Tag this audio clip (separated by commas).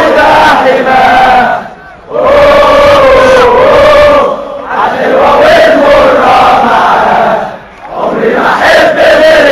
Mantra